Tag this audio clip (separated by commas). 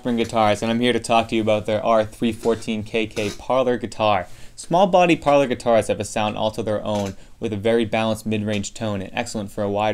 Speech